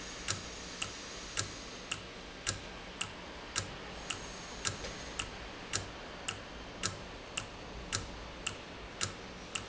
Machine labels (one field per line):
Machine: valve